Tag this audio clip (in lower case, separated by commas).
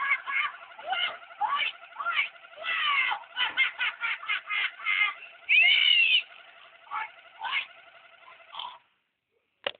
oink